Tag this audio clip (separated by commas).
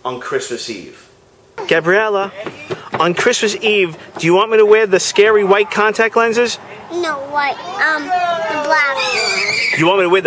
Speech